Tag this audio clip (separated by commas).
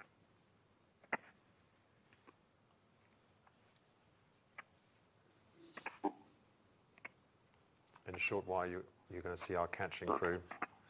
Speech, outside, urban or man-made